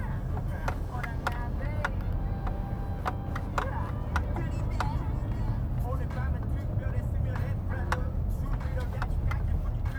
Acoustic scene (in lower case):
car